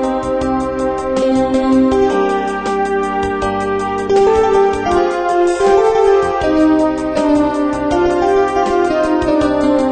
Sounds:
Music

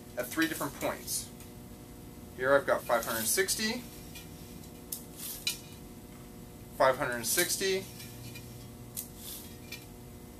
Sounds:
Speech

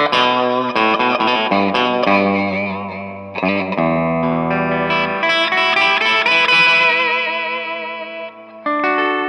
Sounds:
Acoustic guitar, Bass guitar, Musical instrument, Guitar, Plucked string instrument, Music, Strum

